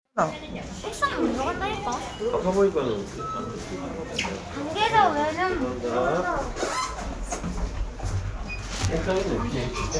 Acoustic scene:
elevator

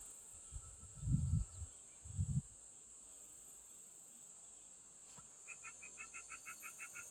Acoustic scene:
park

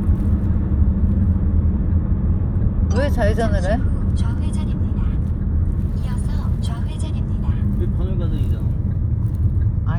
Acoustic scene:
car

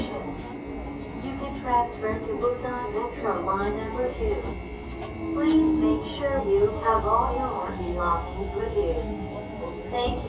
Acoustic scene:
subway train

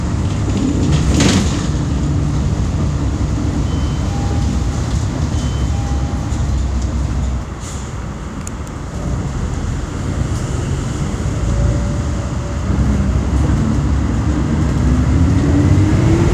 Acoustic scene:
bus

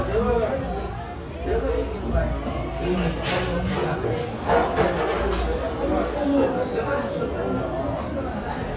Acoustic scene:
crowded indoor space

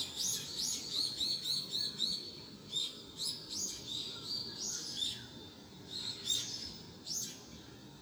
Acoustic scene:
park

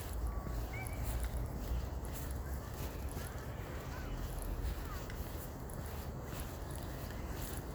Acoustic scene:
residential area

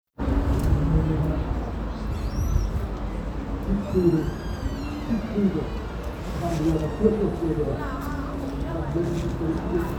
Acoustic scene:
street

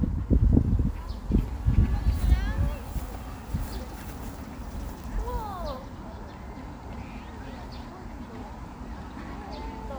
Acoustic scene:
park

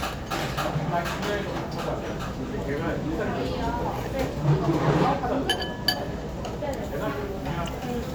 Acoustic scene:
restaurant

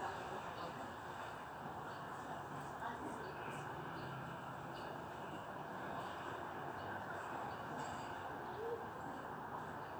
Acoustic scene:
residential area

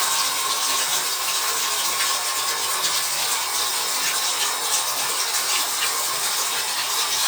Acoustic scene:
restroom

